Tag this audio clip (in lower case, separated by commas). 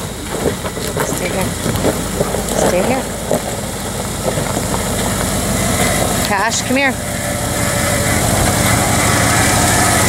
speech